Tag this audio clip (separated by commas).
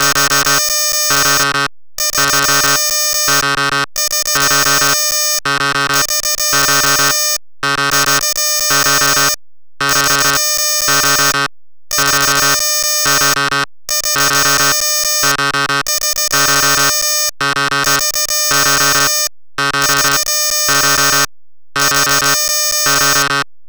Alarm